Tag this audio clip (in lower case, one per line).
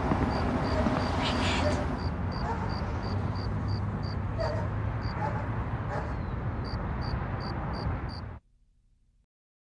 speech